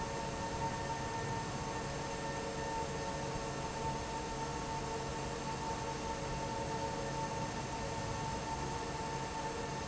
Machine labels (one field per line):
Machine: fan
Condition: normal